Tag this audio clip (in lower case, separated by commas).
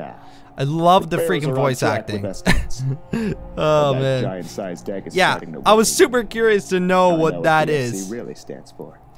speech